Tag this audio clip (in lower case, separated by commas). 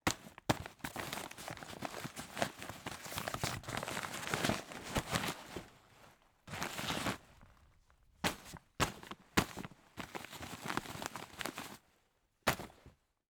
crumpling